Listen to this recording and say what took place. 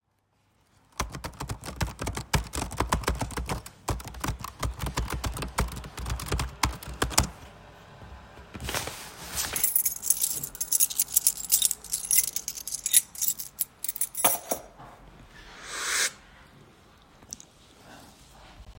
I was typing on my laptop while working on some code. While reviewing the code, I played with my keychain, producing metallic jingling sounds. During this time, I also took a sip from the coffee I had prepared earlier.